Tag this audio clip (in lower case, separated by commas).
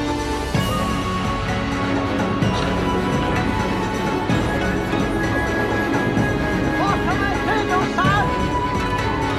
speech, music